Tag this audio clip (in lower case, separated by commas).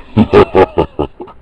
human voice, laughter